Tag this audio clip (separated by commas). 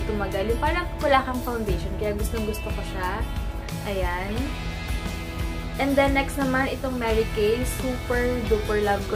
Music, Speech